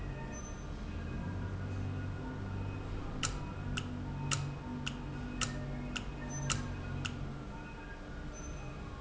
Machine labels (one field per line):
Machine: valve